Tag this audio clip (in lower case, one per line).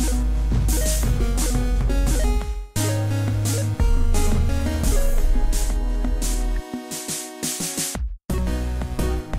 funk
music